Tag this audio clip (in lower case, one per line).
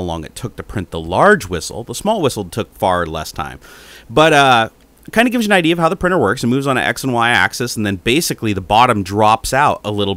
speech